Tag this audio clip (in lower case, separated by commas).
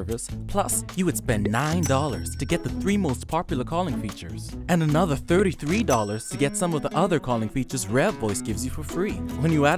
speech, music